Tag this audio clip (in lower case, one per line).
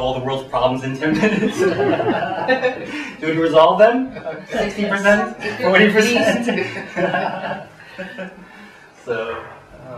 speech